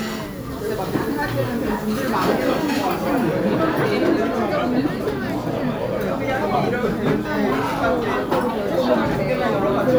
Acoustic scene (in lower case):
restaurant